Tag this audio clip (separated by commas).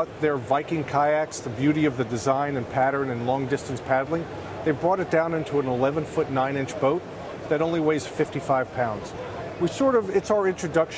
Speech